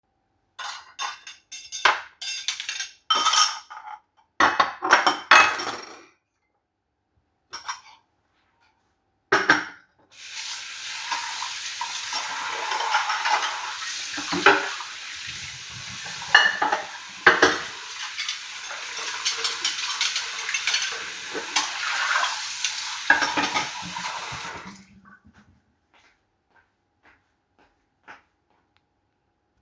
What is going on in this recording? I prepared the dishes and placed them in the sink. I turned on the water and washed them. Then I turned off the water and left.